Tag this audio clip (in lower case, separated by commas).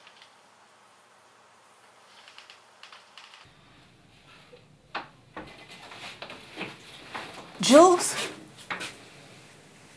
inside a small room, speech